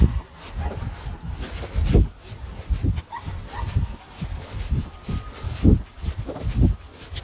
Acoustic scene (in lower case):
residential area